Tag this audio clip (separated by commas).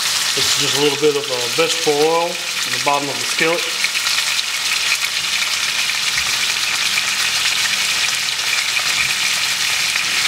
Frying (food)